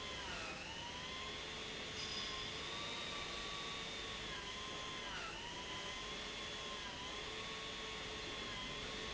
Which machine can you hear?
pump